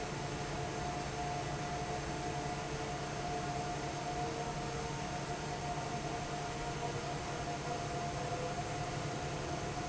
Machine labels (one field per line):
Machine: fan